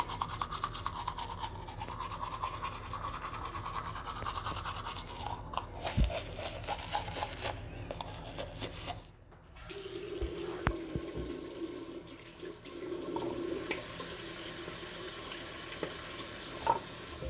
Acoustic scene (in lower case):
restroom